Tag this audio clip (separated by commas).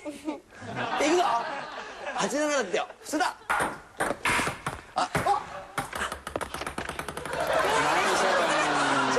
Speech